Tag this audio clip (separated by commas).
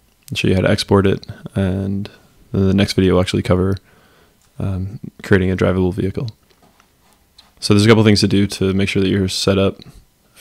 Speech